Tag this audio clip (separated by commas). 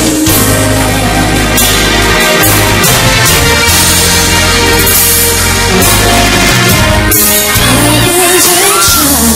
Music, Rhythm and blues